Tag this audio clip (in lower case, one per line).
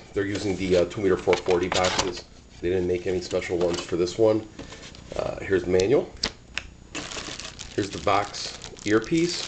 speech